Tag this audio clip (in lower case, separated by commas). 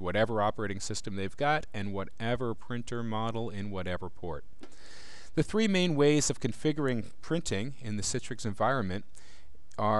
speech